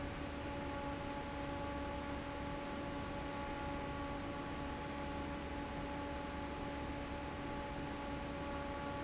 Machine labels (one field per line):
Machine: fan